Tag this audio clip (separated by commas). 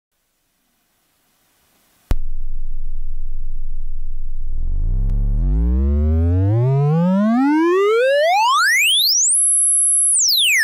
Synthesizer